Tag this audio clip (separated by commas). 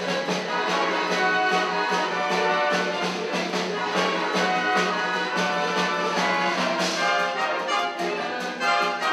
Dance music, Music